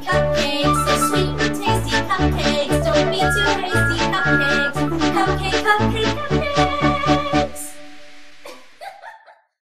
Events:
0.0s-7.5s: female singing
0.0s-8.4s: music
0.0s-9.6s: background noise
3.2s-3.5s: beep
3.7s-4.0s: beep
4.2s-4.7s: beep
8.5s-9.6s: giggle

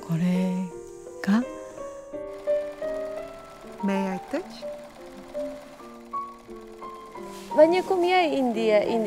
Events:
0.0s-9.0s: music
0.0s-0.6s: female speech
1.2s-1.4s: female speech
1.6s-2.2s: breathing
2.3s-7.3s: sewing machine
3.8s-4.6s: female speech
7.1s-7.5s: surface contact
7.6s-9.0s: female speech
7.7s-8.0s: surface contact

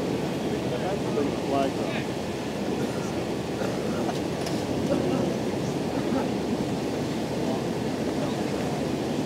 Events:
0.0s-9.2s: medium engine (mid frequency)
0.3s-2.0s: male speech
3.5s-3.7s: generic impact sounds
4.0s-4.2s: generic impact sounds
4.4s-4.5s: tick
4.8s-5.7s: human voice
6.0s-6.3s: human voice
7.3s-7.7s: human voice
8.1s-8.5s: human voice

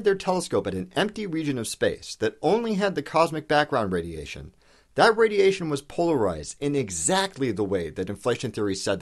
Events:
0.0s-4.6s: male speech
0.0s-9.0s: background noise
4.4s-4.5s: tick
4.6s-4.7s: tick
4.6s-4.9s: breathing
5.0s-9.0s: male speech
7.3s-7.4s: generic impact sounds

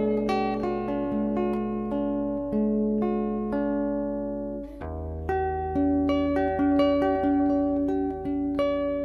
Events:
0.0s-9.0s: music

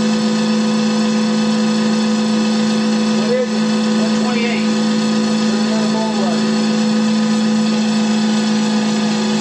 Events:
0.0s-9.4s: mechanisms
3.2s-3.5s: male speech
4.0s-4.8s: male speech
5.5s-6.5s: male speech

